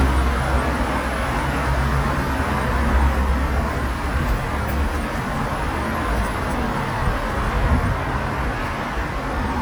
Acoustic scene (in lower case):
street